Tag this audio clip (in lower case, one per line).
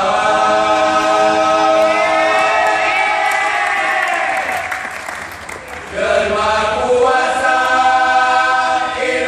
singing choir
choir